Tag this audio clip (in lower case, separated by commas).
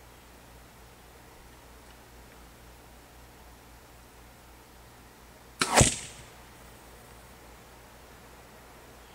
arrow